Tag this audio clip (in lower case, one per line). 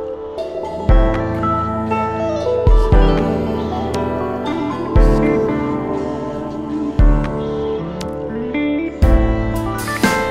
slide guitar
music